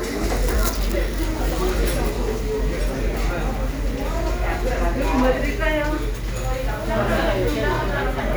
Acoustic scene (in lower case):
crowded indoor space